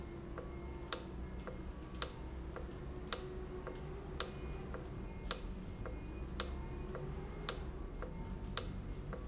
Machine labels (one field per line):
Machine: valve